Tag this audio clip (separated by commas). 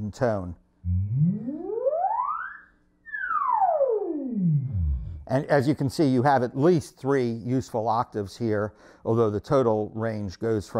playing theremin